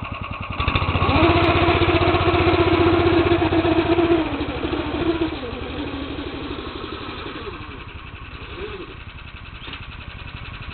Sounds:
vehicle, outside, rural or natural

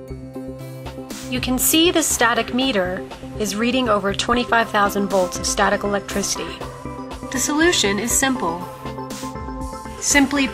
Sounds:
speech, music

